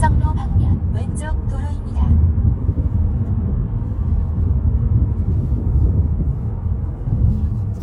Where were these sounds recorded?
in a car